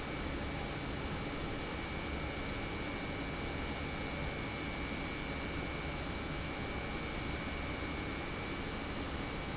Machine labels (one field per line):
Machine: pump